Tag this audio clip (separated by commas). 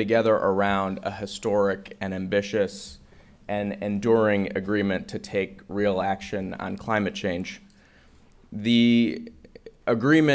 Speech